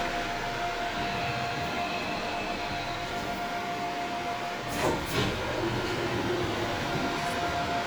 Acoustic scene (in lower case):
subway train